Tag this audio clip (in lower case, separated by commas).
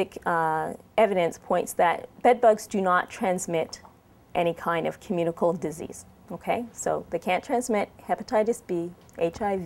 speech